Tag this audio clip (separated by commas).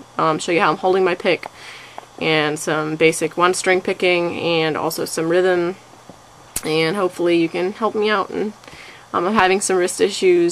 Speech